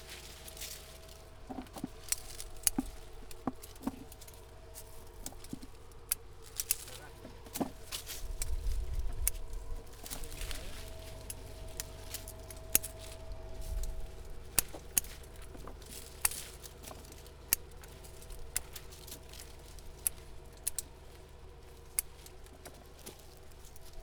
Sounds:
home sounds
scissors

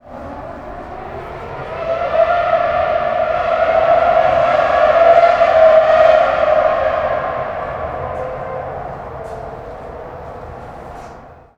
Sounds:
car
auto racing
vehicle
motor vehicle (road)

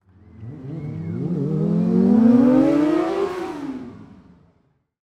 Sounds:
motor vehicle (road)
vehicle
motorcycle

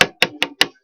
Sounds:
tap

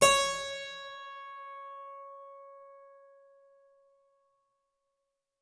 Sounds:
musical instrument
music
keyboard (musical)

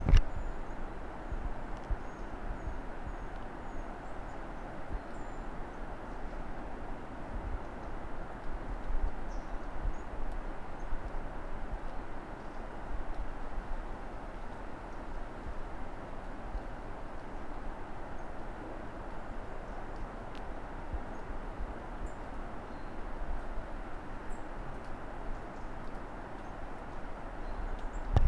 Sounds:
bird call
wild animals
bird
animal

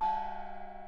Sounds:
musical instrument
percussion
gong
music

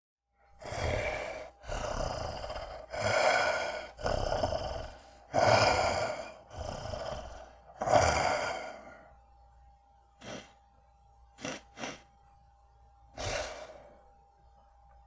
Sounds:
respiratory sounds

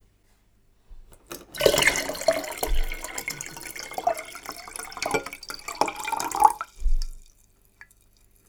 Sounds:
liquid

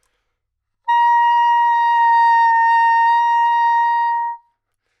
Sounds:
music
musical instrument
wind instrument

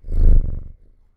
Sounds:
cat
purr
animal
domestic animals

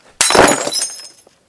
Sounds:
glass
shatter

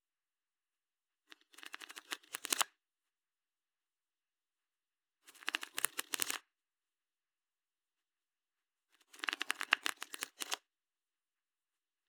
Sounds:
home sounds

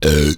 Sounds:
eructation

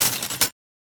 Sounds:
glass

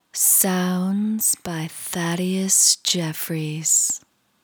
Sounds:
woman speaking
human voice
speech

